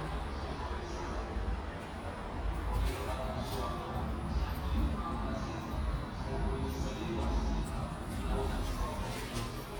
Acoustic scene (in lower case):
elevator